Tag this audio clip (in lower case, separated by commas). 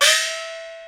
percussion, musical instrument, gong, music